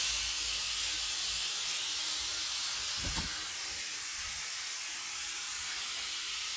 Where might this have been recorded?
in a restroom